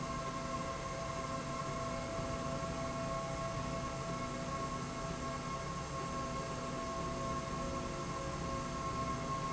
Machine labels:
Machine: slide rail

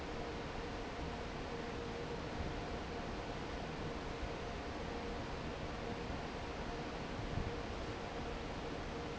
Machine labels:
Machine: fan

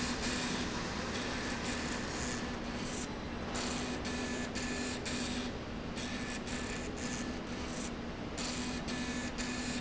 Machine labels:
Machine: slide rail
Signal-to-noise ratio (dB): -6 dB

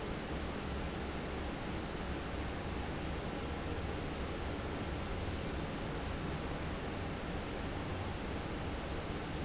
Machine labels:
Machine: fan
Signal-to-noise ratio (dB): -6 dB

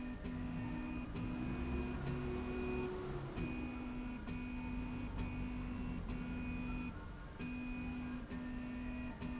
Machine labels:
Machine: slide rail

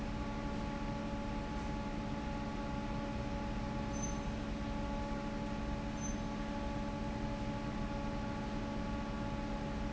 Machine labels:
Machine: fan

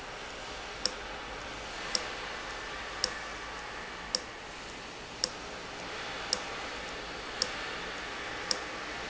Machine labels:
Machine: valve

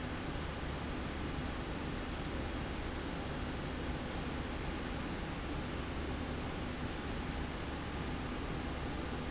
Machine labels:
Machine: slide rail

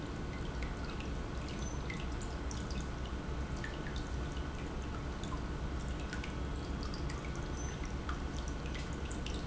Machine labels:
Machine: pump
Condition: normal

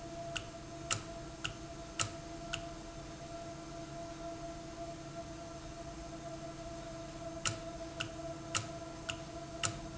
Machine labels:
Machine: valve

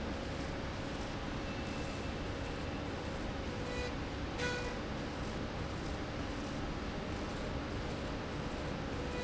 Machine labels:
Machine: slide rail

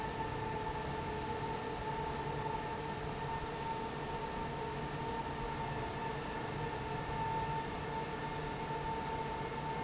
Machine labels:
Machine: fan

